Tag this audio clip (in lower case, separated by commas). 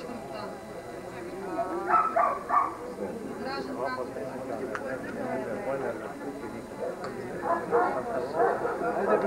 dog, speech, animal, domestic animals, bow-wow